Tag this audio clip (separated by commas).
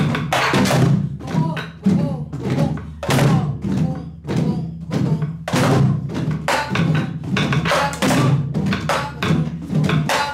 Wood block, Percussion, Music, Drum, Musical instrument